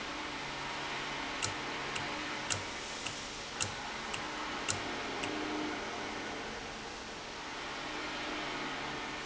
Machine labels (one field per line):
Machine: valve